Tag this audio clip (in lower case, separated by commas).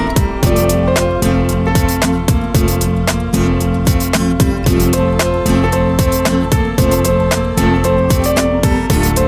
guitar, musical instrument, music, plucked string instrument, strum, acoustic guitar